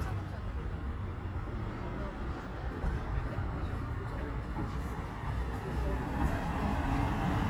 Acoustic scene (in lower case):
residential area